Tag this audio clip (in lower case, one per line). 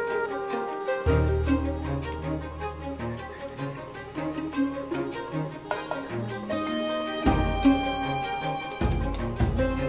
music